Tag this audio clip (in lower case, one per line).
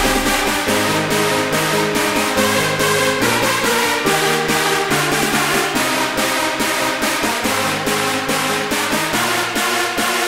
music